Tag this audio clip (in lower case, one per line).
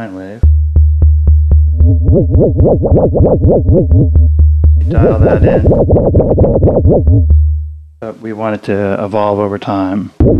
musical instrument
synthesizer
speech
music